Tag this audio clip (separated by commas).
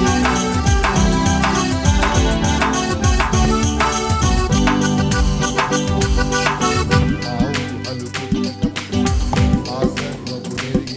Music